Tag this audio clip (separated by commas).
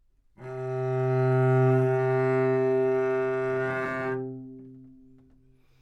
Bowed string instrument, Musical instrument, Music